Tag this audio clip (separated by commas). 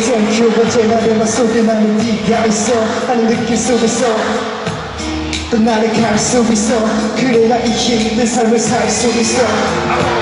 Male singing, Music